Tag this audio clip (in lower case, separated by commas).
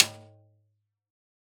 drum, music, percussion, musical instrument, snare drum